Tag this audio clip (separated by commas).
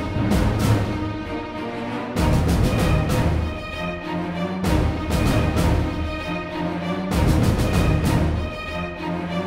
Music